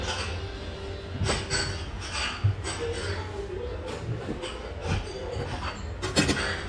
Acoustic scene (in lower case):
restaurant